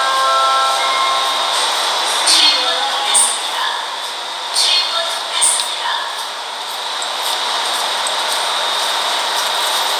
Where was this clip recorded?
on a subway train